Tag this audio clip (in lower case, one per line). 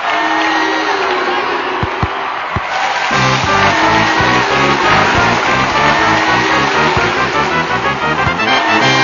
music